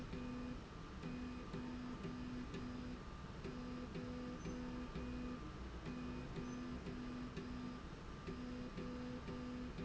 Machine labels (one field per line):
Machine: slide rail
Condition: normal